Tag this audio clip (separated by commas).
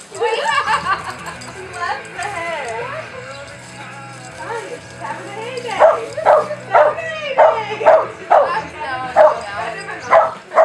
Music, Animal, Dog, Domestic animals, Speech